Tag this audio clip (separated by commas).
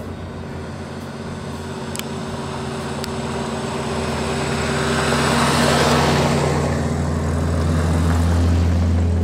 Vehicle, Truck, outside, rural or natural, Car